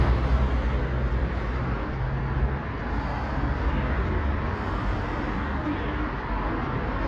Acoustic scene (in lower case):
street